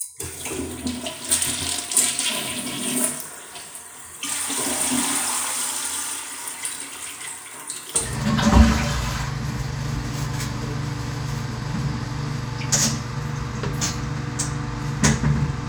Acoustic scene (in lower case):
restroom